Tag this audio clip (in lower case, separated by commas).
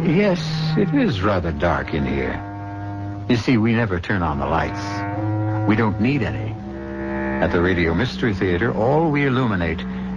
music, speech